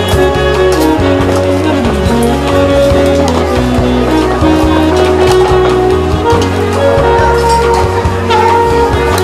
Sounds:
speech
music

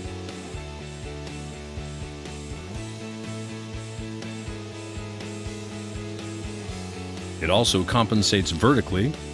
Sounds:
music
speech

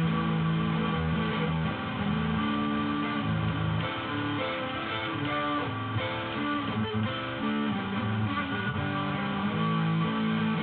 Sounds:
music

